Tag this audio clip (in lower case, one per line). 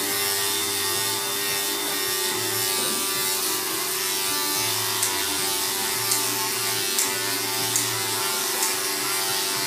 scissors
electric razor